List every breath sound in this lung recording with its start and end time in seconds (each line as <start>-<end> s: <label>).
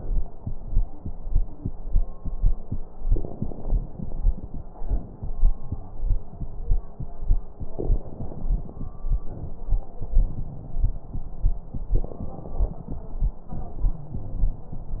2.99-4.74 s: inhalation
2.99-4.74 s: crackles
4.74-6.52 s: exhalation
5.60-6.21 s: wheeze
7.77-9.91 s: inhalation
7.77-9.91 s: crackles
9.93-12.00 s: exhalation
9.93-12.00 s: crackles
11.96-13.53 s: inhalation
12.01-13.53 s: crackles
13.53-15.00 s: exhalation
13.91-14.80 s: wheeze